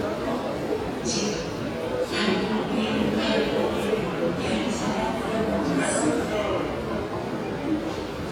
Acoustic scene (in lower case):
subway station